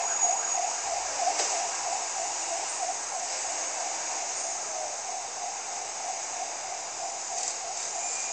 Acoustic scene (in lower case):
street